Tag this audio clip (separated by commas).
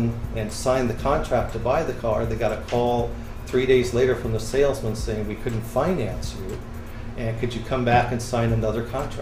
Speech, Music